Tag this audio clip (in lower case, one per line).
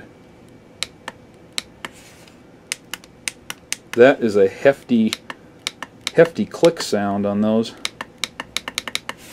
speech